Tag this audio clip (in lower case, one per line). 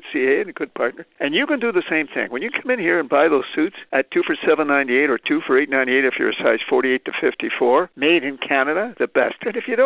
speech